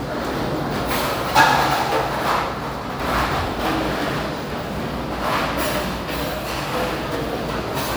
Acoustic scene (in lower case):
restaurant